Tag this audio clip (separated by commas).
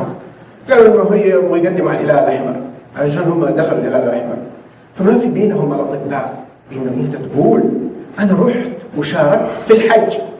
Speech